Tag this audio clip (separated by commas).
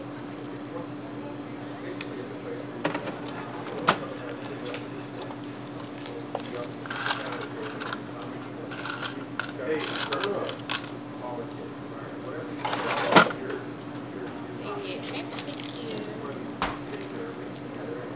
Mechanisms